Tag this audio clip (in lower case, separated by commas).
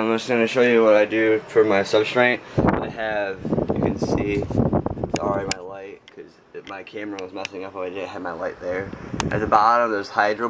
speech